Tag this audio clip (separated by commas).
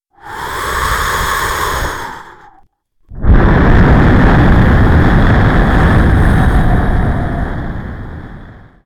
Respiratory sounds, Wind, Breathing